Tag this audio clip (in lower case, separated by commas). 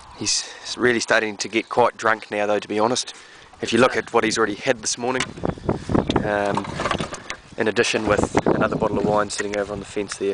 speech